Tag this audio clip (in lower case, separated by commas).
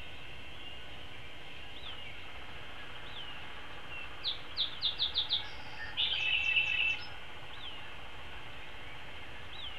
bird